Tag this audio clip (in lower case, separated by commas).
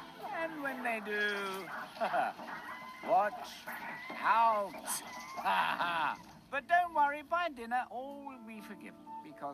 speech, animal, music